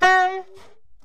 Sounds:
Music, woodwind instrument, Musical instrument

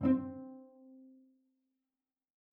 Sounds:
Music, Bowed string instrument, Musical instrument

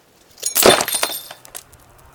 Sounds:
Glass, Shatter

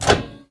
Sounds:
Microwave oven, Domestic sounds

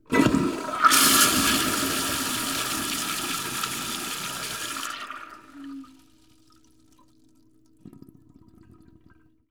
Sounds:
Toilet flush, Water, Domestic sounds, Gurgling

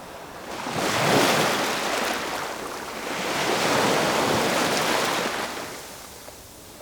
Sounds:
surf, Water, Ocean

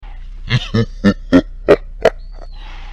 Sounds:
Human voice, Laughter

